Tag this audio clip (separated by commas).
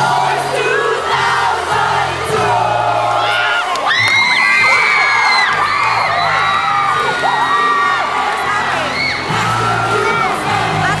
people cheering